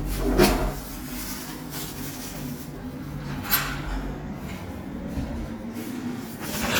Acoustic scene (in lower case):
restroom